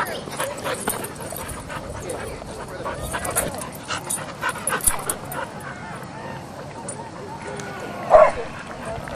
Dog panting and barking